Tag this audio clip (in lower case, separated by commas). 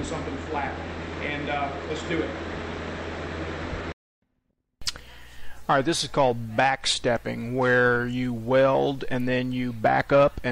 arc welding